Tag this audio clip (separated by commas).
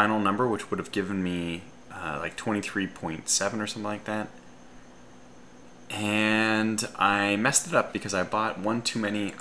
Speech